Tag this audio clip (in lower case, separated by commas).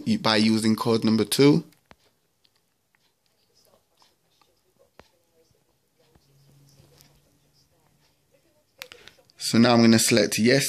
inside a small room, speech